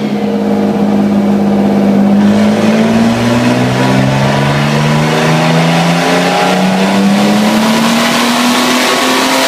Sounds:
car, vehicle, motor vehicle (road)

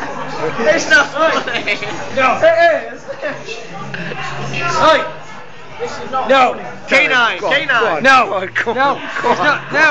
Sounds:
speech

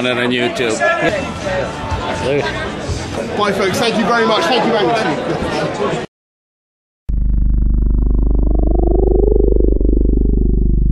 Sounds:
speech, music

